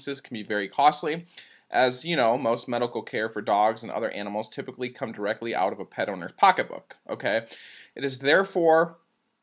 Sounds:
speech

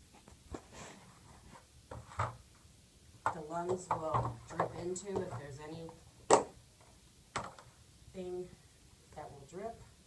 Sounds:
inside a small room
speech

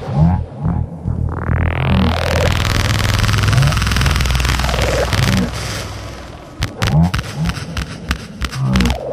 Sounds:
techno
electronic music
music

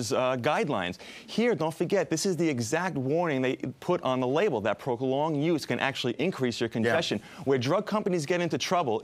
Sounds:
speech

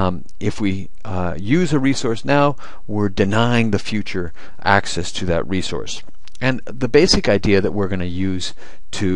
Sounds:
speech

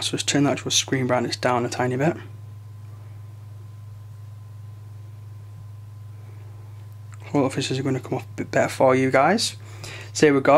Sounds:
inside a small room
speech

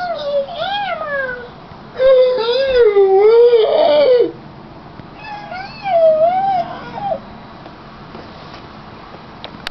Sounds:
speech

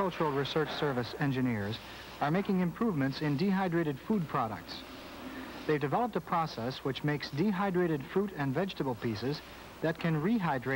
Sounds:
speech

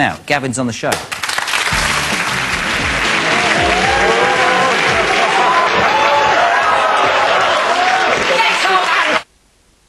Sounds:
speech
music

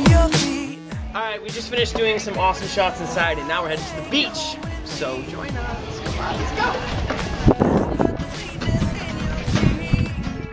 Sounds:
music
speech

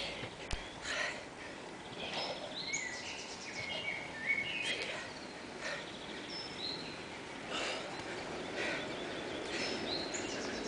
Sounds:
silence

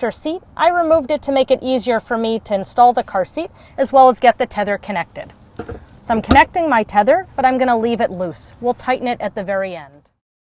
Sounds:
speech

